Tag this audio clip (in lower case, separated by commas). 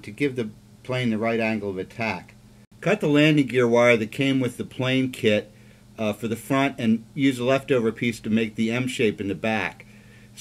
speech